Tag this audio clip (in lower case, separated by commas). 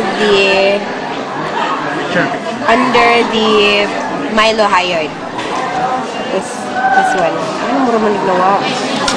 male speech, female speech